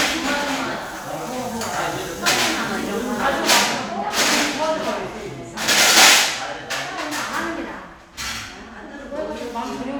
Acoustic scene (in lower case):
crowded indoor space